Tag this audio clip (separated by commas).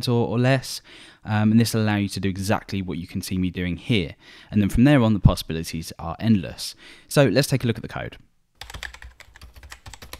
Speech, Computer keyboard